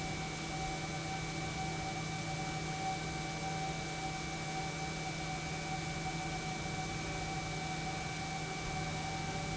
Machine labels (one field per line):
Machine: pump